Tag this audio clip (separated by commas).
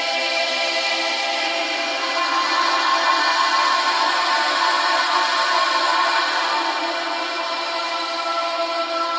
Christmas music